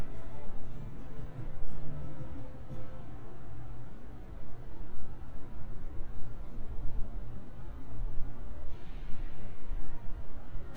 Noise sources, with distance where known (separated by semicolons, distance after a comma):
background noise